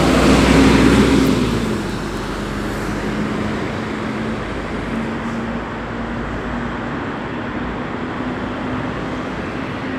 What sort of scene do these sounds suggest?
street